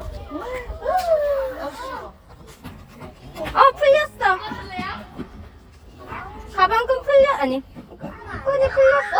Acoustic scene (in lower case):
park